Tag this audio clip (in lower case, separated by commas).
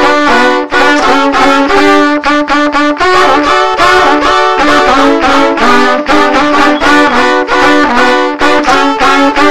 music, trumpet, musical instrument